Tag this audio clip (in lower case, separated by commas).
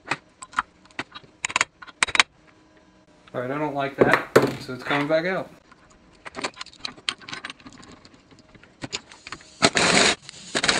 speech, inside a large room or hall